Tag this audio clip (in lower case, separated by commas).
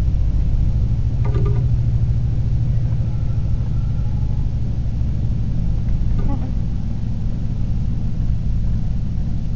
thump, speech